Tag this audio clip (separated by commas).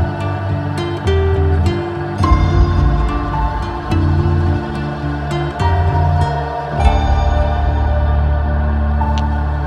Music, Soundtrack music